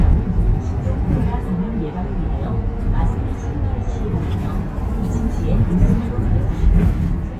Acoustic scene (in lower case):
bus